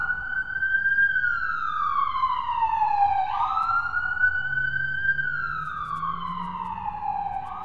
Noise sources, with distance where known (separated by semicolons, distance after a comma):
siren, near